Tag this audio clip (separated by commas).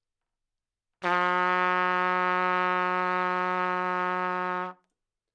Music, Brass instrument, Musical instrument, Trumpet